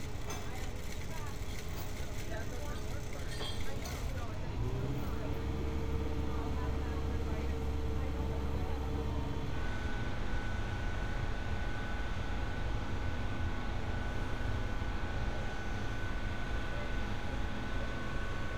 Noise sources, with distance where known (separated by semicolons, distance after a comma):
engine of unclear size